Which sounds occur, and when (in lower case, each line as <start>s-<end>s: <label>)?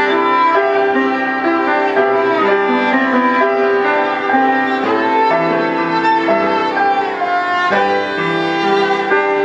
0.0s-9.4s: music